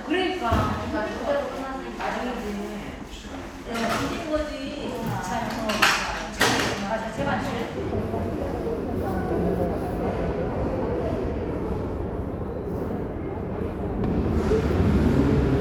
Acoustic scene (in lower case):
crowded indoor space